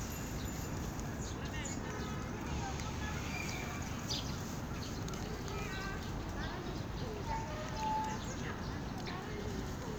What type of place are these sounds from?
park